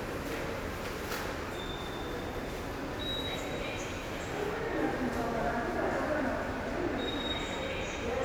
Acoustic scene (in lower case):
subway station